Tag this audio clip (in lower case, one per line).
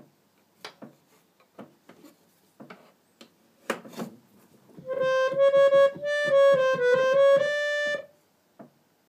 musical instrument
keyboard (musical)
music
piano